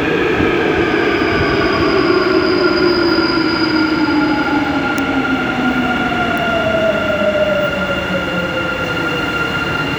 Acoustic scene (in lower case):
subway station